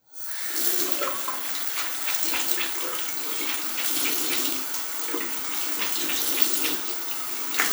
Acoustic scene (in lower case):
restroom